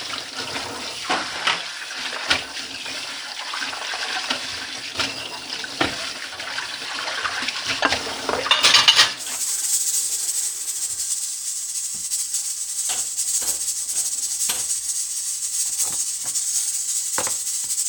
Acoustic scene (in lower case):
kitchen